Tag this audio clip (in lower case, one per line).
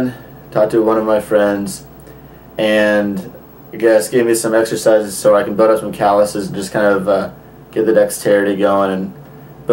speech